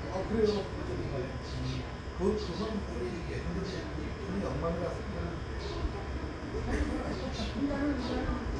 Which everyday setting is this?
residential area